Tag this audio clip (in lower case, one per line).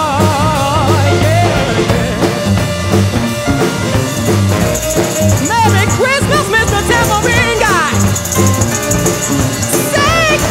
playing tambourine